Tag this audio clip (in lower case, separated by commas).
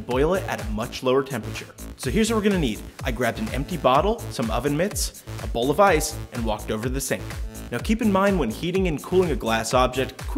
speech, music